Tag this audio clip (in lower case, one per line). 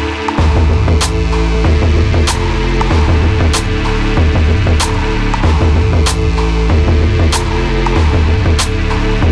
music